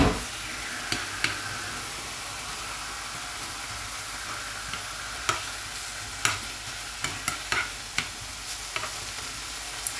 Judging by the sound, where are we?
in a kitchen